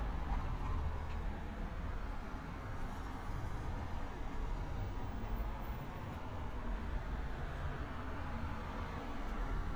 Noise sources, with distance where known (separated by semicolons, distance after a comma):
background noise